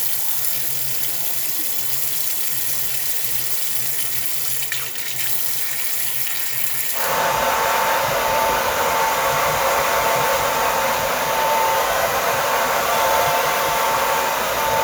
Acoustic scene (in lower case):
restroom